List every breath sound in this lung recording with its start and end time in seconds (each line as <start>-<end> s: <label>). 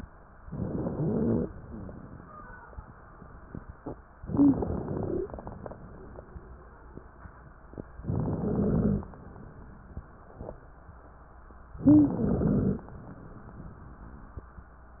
0.44-1.45 s: inhalation
0.97-1.49 s: wheeze
4.22-5.32 s: inhalation
4.27-5.31 s: wheeze
4.27-5.31 s: crackles
8.03-9.14 s: inhalation
8.05-9.09 s: wheeze
8.05-9.09 s: crackles
11.79-12.84 s: crackles
11.81-12.84 s: wheeze